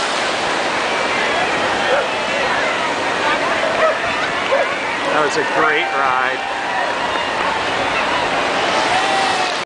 Waves and murmuring followed by distant barking and a man speaking